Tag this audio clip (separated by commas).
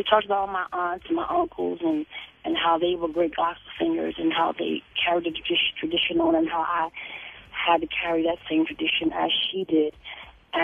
Speech